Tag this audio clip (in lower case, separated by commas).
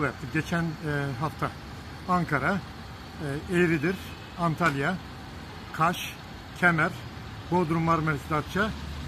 speech